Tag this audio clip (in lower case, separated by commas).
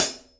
music, percussion, cymbal, musical instrument, hi-hat